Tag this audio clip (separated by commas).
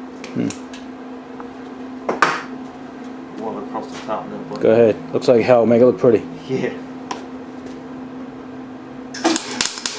Speech, Tools